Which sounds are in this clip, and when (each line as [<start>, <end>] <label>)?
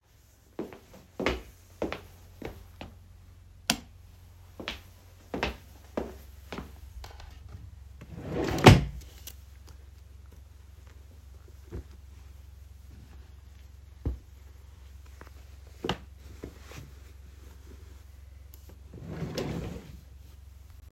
[0.54, 2.92] footsteps
[3.61, 3.94] light switch
[4.51, 6.80] footsteps
[8.07, 9.27] wardrobe or drawer
[18.93, 19.92] wardrobe or drawer